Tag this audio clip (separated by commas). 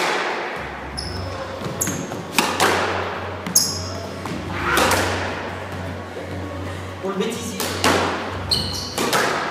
playing squash